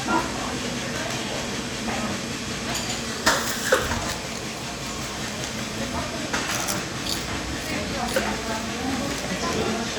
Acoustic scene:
cafe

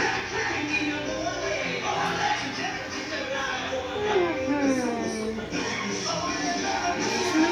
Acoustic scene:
restaurant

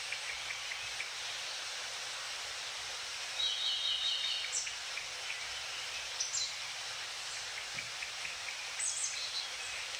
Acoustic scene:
park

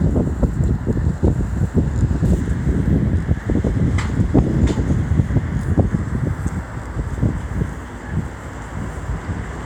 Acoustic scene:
street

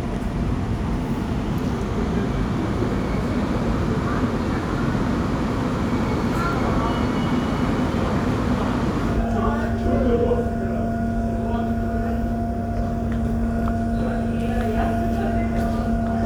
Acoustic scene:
subway station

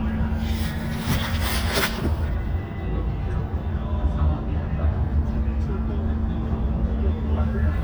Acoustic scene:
bus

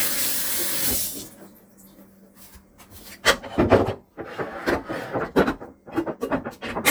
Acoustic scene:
kitchen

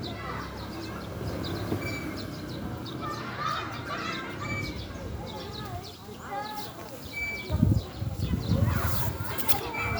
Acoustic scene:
residential area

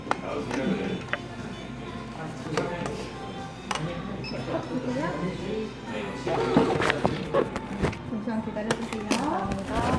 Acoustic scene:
cafe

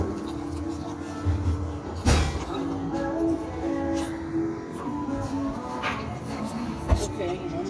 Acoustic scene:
cafe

